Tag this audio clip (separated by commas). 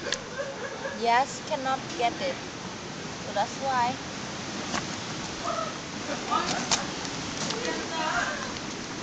Speech, Animal